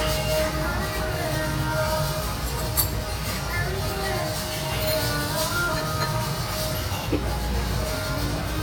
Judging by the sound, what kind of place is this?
restaurant